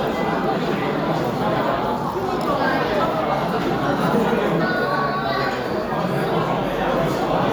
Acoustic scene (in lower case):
restaurant